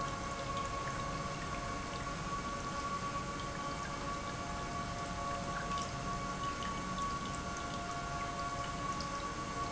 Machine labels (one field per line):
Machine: pump